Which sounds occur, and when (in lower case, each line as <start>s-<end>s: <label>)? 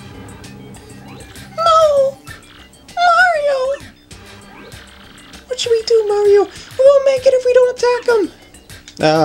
0.0s-9.2s: music
1.0s-1.6s: sound effect
1.5s-2.1s: speech synthesizer
2.2s-2.7s: sound effect
2.8s-3.9s: speech synthesizer
4.1s-5.5s: sound effect
5.4s-6.5s: speech synthesizer
6.8s-8.3s: speech synthesizer
8.9s-9.2s: speech synthesizer